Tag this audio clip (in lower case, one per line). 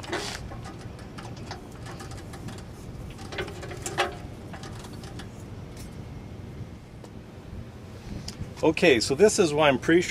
speech